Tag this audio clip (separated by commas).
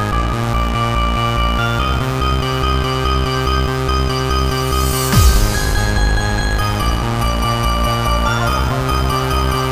Music, Techno